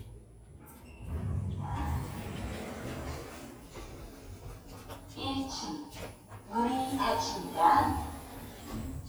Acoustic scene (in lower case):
elevator